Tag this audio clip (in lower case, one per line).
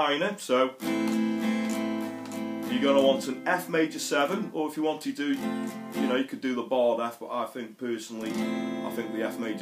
plucked string instrument
acoustic guitar
speech
guitar
music
musical instrument